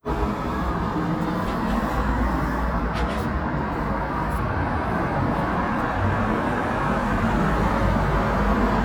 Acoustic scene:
street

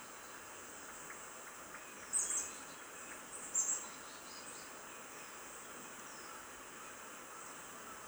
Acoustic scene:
park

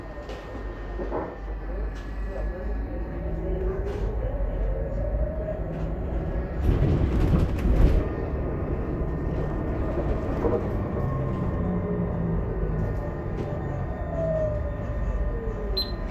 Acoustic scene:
bus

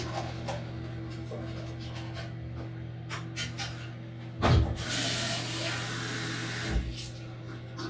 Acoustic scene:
restroom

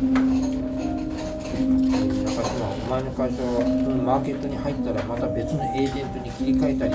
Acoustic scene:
restaurant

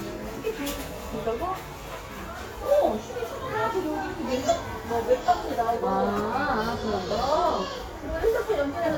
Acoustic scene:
crowded indoor space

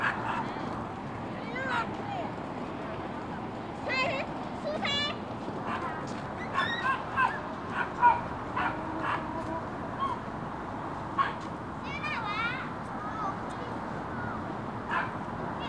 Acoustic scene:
residential area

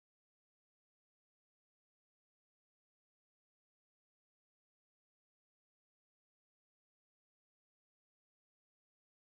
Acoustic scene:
restroom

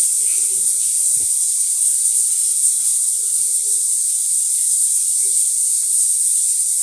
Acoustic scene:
restroom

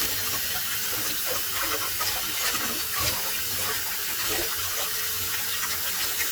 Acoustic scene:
kitchen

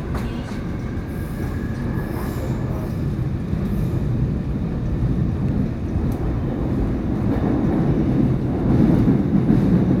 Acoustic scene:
subway train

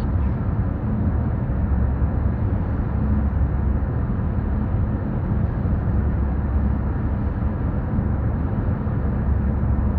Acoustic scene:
car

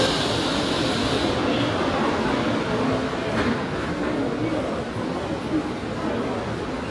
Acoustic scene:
subway station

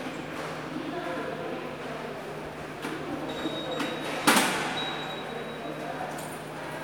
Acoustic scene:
subway station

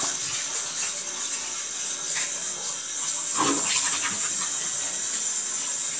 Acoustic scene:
restroom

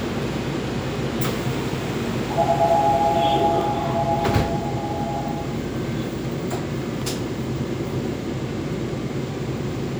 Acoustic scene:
subway train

